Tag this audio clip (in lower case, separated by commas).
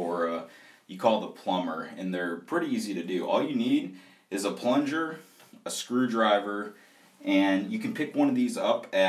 speech